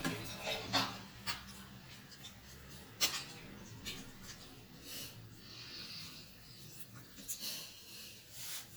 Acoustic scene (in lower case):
restroom